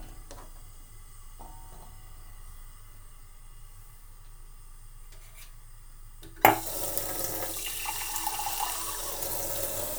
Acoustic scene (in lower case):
kitchen